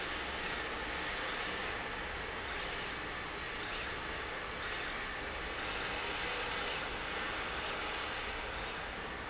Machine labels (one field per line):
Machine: slide rail